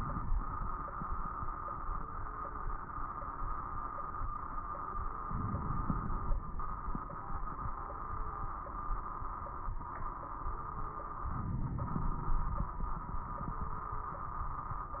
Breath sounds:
Inhalation: 5.23-6.40 s, 11.30-12.77 s
Crackles: 5.23-6.40 s, 11.30-12.77 s

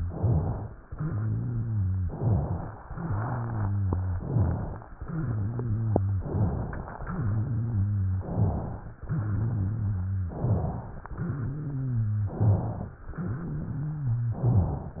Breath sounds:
Inhalation: 0.00-0.81 s, 2.13-2.82 s, 4.20-4.89 s, 6.24-6.94 s, 10.34-11.03 s, 12.37-13.06 s, 14.31-15.00 s
Exhalation: 0.82-2.09 s, 2.93-4.20 s, 4.20-4.89 s, 4.92-6.18 s, 7.05-8.23 s, 9.03-10.34 s, 11.06-12.37 s, 13.11-14.42 s
Wheeze: 0.82-2.09 s, 2.93-4.20 s, 4.92-6.18 s, 6.24-6.94 s, 7.05-8.23 s, 9.03-10.34 s, 11.06-12.37 s, 13.11-14.42 s
Rhonchi: 0.00-0.81 s, 2.13-2.82 s, 4.20-4.89 s, 10.34-11.03 s, 12.37-13.06 s, 14.31-15.00 s

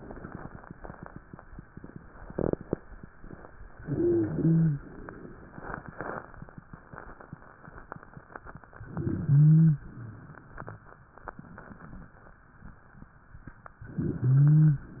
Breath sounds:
Inhalation: 3.79-4.84 s, 8.82-9.87 s, 13.89-14.93 s
Wheeze: 3.79-4.84 s, 8.82-9.87 s, 13.89-14.93 s

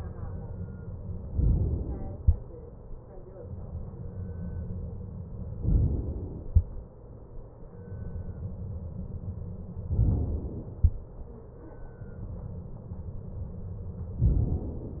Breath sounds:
Inhalation: 1.34-2.20 s, 5.64-6.50 s, 9.92-10.78 s, 14.20-15.00 s

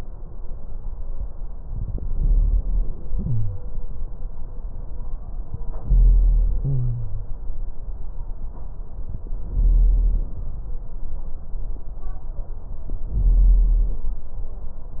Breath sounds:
Inhalation: 1.59-3.64 s, 5.71-7.25 s, 9.42-10.36 s, 13.15-14.09 s
Wheeze: 3.11-3.64 s, 6.59-7.25 s

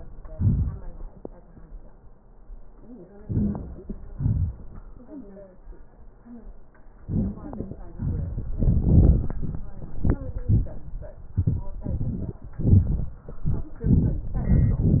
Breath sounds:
Inhalation: 3.21-3.61 s, 7.05-7.45 s
Exhalation: 4.12-4.52 s, 7.96-8.45 s

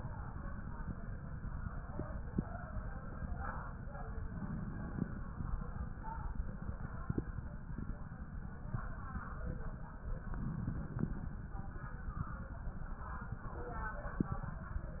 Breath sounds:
Inhalation: 4.27-5.42 s, 10.29-11.43 s

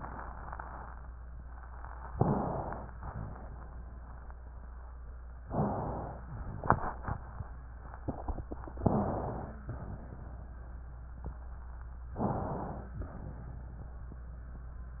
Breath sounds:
Inhalation: 2.15-2.88 s, 5.53-6.17 s, 8.81-9.70 s, 12.20-12.92 s
Exhalation: 2.88-3.52 s, 6.17-6.66 s, 9.73-10.46 s, 12.92-13.90 s
Wheeze: 9.02-9.73 s, 12.20-12.92 s
Rhonchi: 2.14-2.75 s, 3.01-3.39 s, 5.50-6.09 s

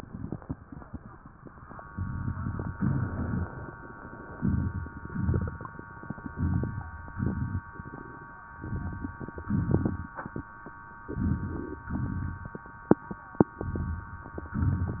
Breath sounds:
Inhalation: 1.92-2.71 s, 4.36-5.03 s, 6.24-6.91 s, 8.56-9.22 s, 11.12-11.84 s, 13.68-14.52 s
Exhalation: 2.79-3.46 s, 5.10-5.77 s, 7.08-7.74 s, 9.49-10.15 s, 11.95-12.68 s
Crackles: 1.92-2.71 s, 2.79-3.46 s, 4.36-5.03 s, 5.10-5.77 s, 6.24-6.91 s, 7.08-7.74 s, 8.56-9.22 s, 9.49-10.15 s, 11.12-11.84 s, 11.95-12.68 s, 13.68-14.52 s

